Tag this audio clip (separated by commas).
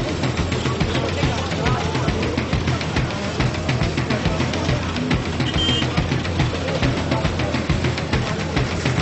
Music, Speech